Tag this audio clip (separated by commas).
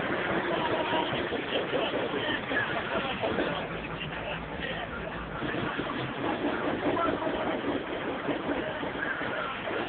Speech